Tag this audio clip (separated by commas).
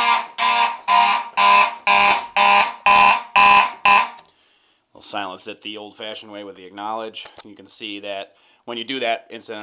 Speech